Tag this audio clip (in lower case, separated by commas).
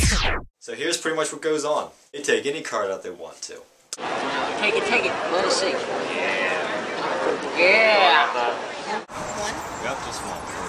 speech